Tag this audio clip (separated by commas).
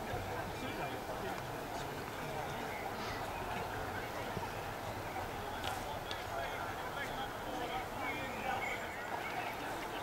outside, urban or man-made, Speech